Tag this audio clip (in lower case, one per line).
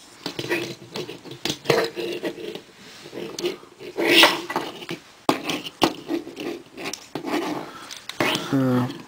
speech
inside a small room